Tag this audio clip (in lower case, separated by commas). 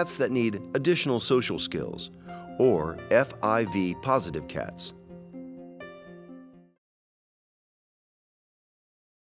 music, speech